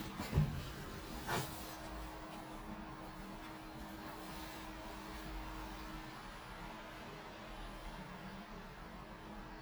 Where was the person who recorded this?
in an elevator